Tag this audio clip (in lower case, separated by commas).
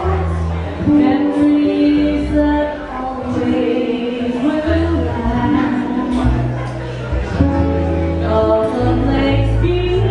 music, female singing